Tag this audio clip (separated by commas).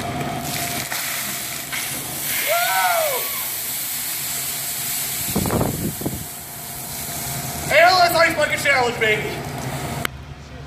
Speech